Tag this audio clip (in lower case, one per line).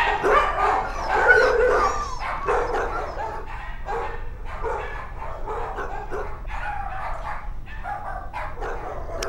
dog bow-wow
animal
bow-wow
domestic animals
dog